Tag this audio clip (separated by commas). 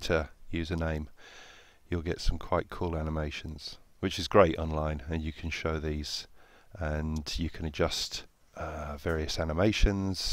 Speech